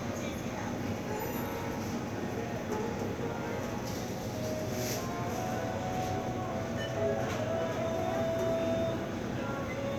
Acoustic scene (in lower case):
crowded indoor space